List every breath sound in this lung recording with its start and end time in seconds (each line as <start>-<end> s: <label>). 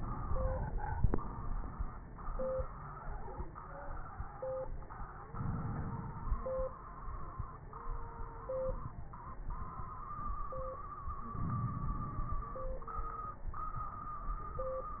5.30-6.66 s: inhalation
5.30-6.66 s: crackles
11.36-12.54 s: inhalation
11.36-12.54 s: crackles